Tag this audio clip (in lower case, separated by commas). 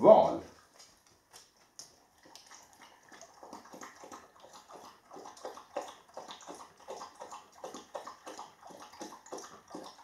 speech